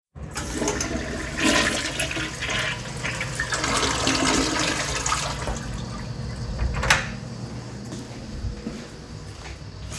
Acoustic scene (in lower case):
restroom